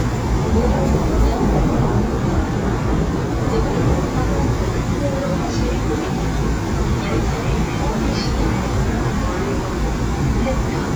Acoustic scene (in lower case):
subway train